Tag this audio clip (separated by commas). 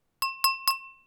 Glass, Chink